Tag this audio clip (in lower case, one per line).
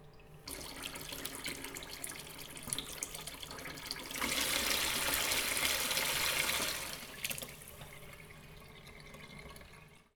trickle
liquid
pour
domestic sounds
faucet
sink (filling or washing)